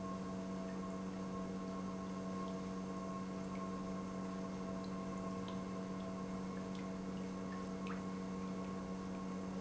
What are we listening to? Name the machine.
pump